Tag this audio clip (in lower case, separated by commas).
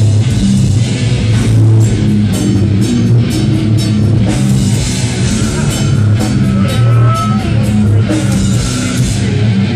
music, speech, heavy metal, rock music